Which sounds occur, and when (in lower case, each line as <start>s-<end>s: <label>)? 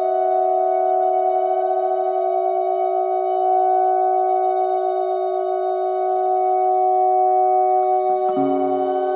0.0s-9.1s: mechanisms
8.0s-8.8s: music